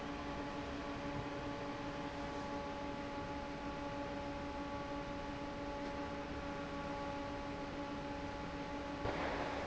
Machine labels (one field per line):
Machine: fan